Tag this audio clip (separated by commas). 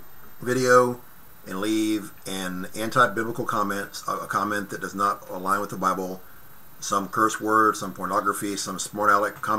Speech